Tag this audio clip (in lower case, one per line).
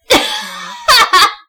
laughter
human voice